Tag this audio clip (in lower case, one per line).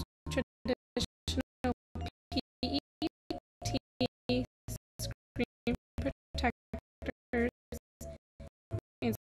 speech
music